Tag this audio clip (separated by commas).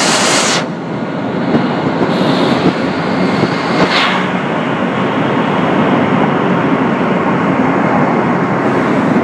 Wood, inside a large room or hall